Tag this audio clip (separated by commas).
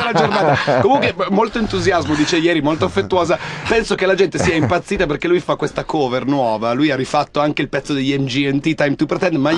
Speech